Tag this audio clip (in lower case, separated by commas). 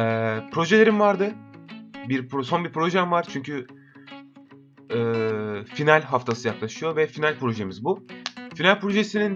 speech, music